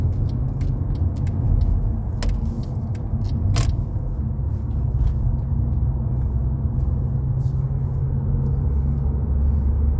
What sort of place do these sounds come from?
car